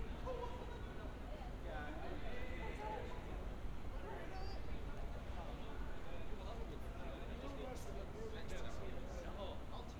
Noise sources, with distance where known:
unidentified human voice

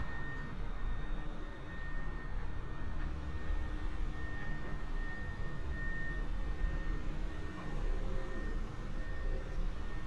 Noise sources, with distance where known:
unidentified alert signal

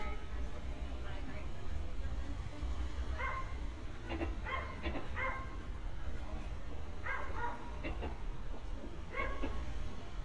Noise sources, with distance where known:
dog barking or whining

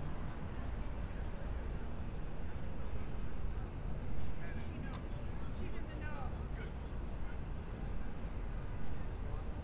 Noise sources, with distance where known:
person or small group talking, far

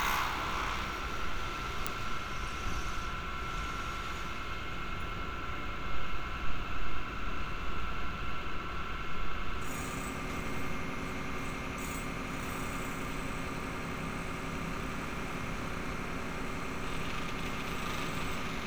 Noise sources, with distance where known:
engine of unclear size

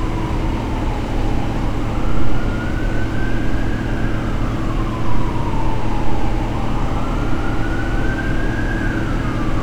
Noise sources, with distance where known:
siren, far

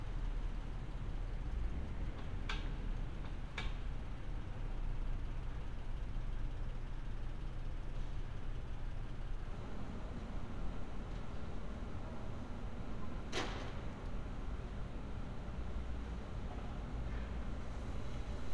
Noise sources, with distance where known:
non-machinery impact

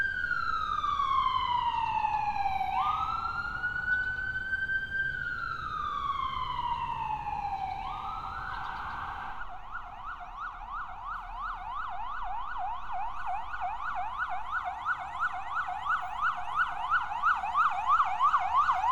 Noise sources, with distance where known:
siren, near

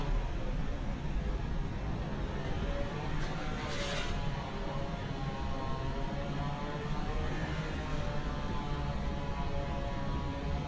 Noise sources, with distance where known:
small-sounding engine, far; chainsaw, far

